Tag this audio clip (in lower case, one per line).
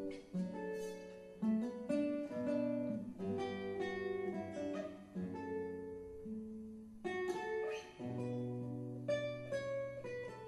music
lullaby